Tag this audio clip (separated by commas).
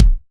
Percussion, Music, Musical instrument, Bass drum, Drum